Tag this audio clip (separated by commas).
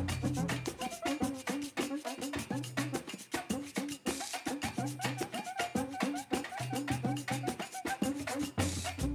Music